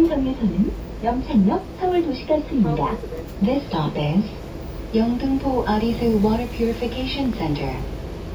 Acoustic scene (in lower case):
bus